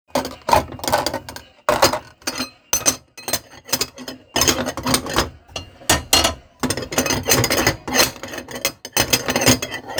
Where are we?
in a kitchen